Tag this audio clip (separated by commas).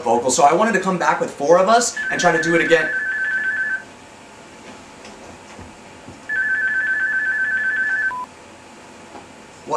Speech, inside a small room